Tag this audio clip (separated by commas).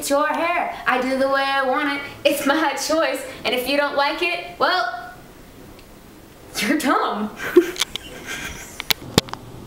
inside a small room, Speech